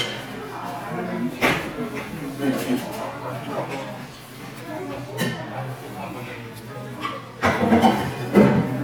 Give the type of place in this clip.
crowded indoor space